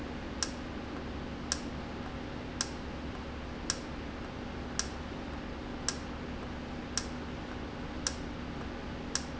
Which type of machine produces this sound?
valve